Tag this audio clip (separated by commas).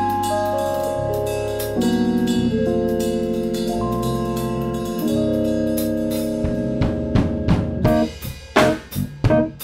Funk, Music, Plucked string instrument, Guitar, Musical instrument, Bass guitar, Strum